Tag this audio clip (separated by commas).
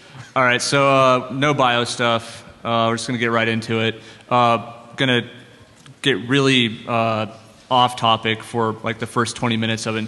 Speech